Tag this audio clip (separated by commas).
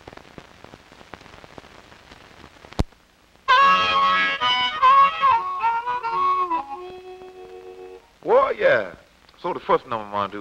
Speech, Music, Harmonica